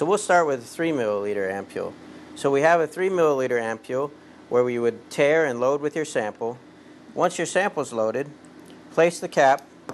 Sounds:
Speech

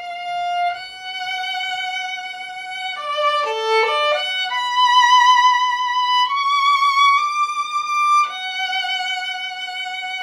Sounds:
Musical instrument, fiddle, Music

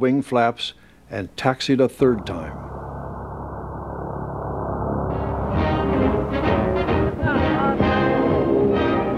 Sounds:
Speech, Music

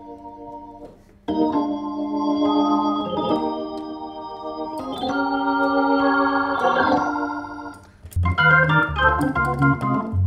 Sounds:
playing hammond organ

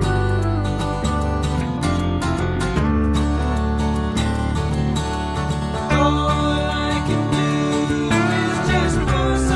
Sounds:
Music

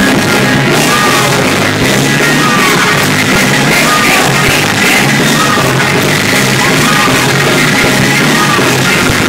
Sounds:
Whoop, Music

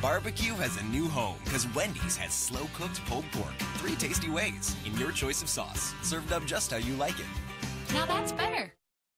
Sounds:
Speech, Music

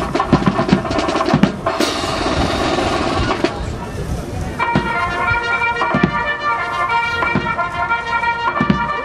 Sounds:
Music, Speech

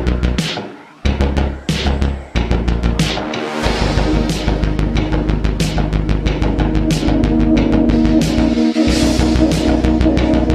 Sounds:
Music

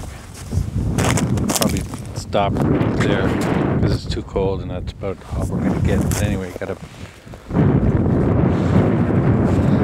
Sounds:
Speech

